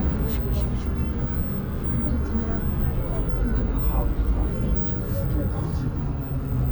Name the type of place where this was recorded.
bus